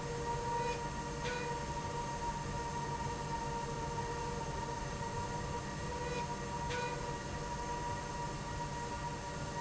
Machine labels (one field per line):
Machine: slide rail